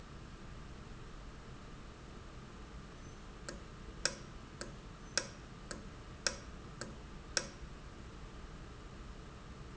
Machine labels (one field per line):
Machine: valve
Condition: normal